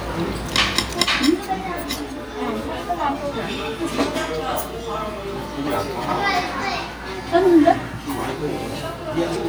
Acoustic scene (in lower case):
restaurant